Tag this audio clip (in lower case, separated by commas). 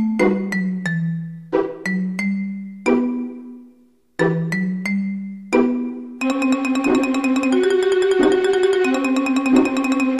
music